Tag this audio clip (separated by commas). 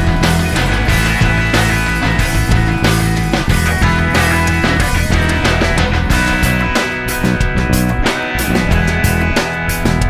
Music